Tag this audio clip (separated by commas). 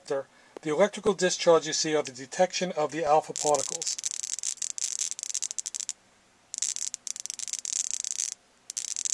inside a small room, Speech